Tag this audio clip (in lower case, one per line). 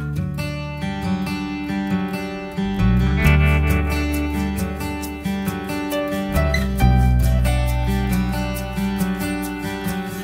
music